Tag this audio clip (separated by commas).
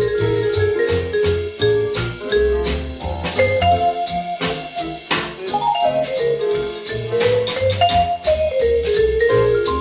inside a small room, Music